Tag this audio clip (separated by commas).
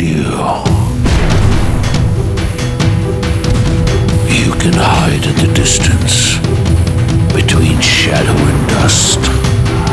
Artillery fire, Speech, Music